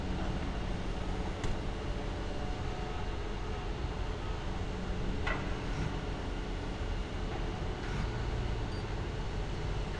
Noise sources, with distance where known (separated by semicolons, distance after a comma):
non-machinery impact, near